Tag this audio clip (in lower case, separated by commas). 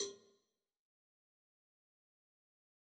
cowbell, bell